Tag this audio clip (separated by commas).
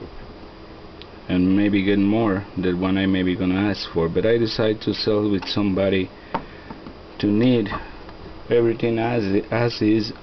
Speech